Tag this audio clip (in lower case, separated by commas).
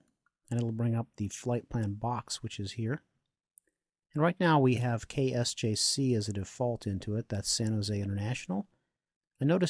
speech